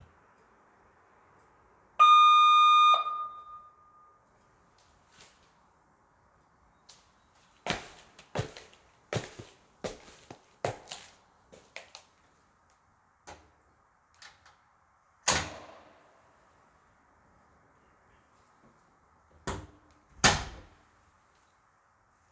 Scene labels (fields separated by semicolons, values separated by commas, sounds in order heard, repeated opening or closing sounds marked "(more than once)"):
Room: hallway; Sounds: bell ringing, footsteps, door (more than once)